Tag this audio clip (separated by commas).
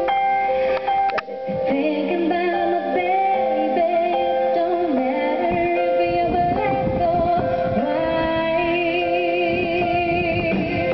inside a large room or hall, Singing, Music